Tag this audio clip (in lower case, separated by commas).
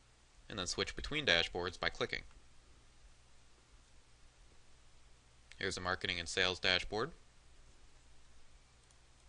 speech